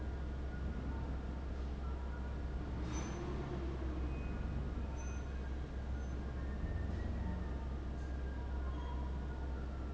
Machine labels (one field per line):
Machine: fan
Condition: abnormal